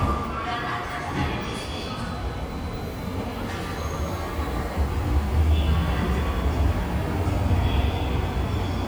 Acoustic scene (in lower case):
subway station